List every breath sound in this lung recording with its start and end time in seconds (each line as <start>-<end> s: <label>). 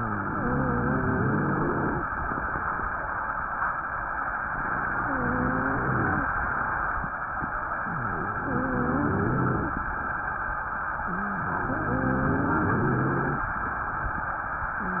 0.00-2.05 s: inhalation
0.00-2.05 s: wheeze
4.95-6.32 s: inhalation
4.95-6.32 s: wheeze
7.85-9.91 s: inhalation
7.85-9.91 s: wheeze
11.14-13.49 s: inhalation
11.14-13.49 s: wheeze